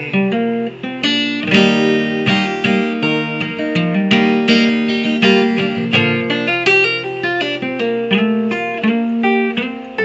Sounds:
Music, Guitar, Musical instrument

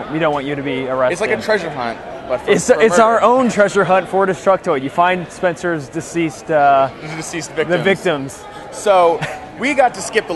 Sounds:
Speech

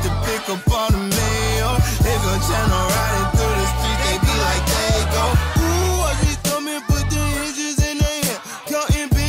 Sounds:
Music

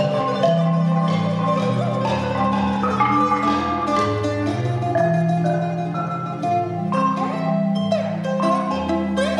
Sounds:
Marimba, Glockenspiel, Mallet percussion

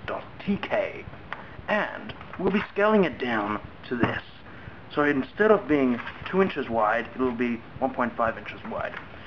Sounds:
Speech

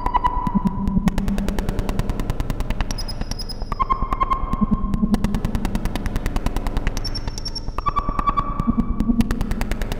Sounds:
Synthesizer, Music, Sonar

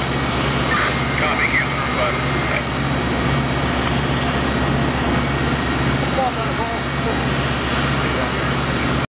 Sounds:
Speech

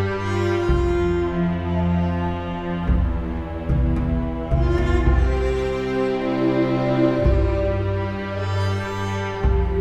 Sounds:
Sad music, Music

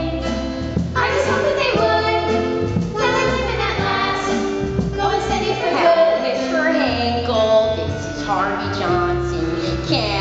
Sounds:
Music

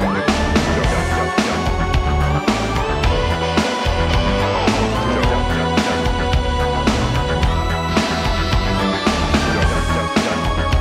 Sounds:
Music

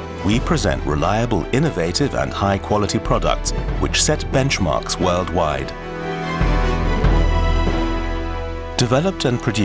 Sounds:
Music, Speech

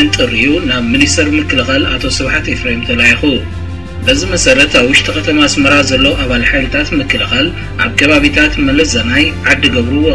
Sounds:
Radio, Music, Speech

